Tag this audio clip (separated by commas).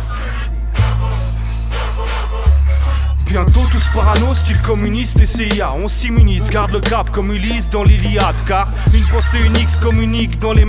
Music